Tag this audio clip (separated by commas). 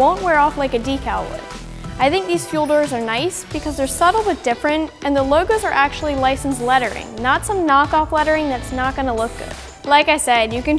Music, Speech